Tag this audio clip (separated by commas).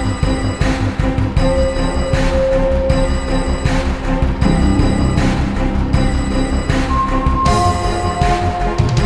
Music